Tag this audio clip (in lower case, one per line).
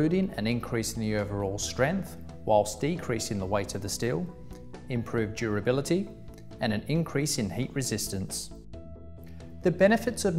speech